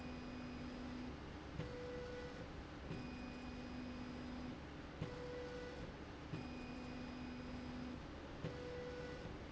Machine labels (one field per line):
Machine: slide rail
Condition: normal